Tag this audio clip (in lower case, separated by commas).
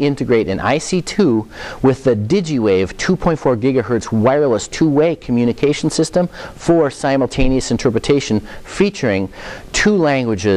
sizzle, speech